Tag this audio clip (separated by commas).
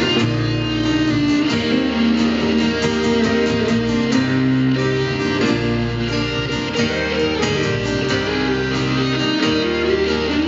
Country